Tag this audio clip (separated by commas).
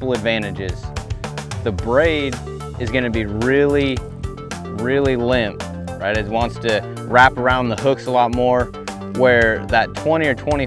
Music, Speech